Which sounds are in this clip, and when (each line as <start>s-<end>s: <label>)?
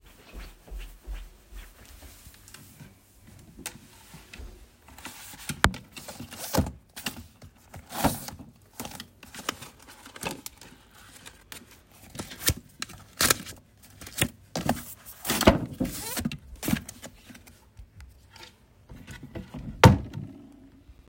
0.0s-4.8s: footsteps
4.9s-5.9s: wardrobe or drawer
6.4s-6.8s: wardrobe or drawer
7.8s-8.6s: wardrobe or drawer
15.2s-15.9s: wardrobe or drawer
18.8s-21.1s: wardrobe or drawer